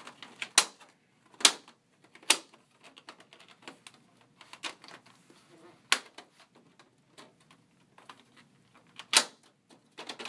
An object being snapped into some others object